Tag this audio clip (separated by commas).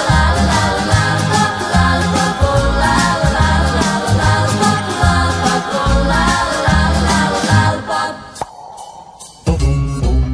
Music